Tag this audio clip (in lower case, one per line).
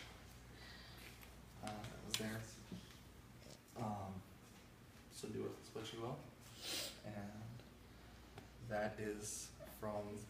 speech